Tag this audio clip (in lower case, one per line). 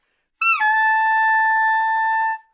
musical instrument
woodwind instrument
music